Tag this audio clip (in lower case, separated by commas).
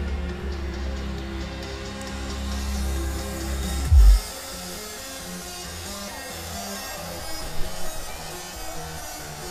music, disco